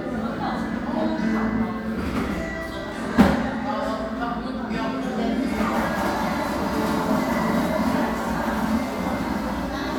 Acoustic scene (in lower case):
crowded indoor space